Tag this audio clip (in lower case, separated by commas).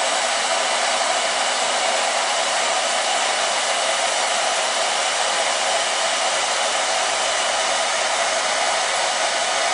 tools, power tool